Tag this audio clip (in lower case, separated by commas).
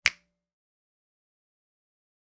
hands, finger snapping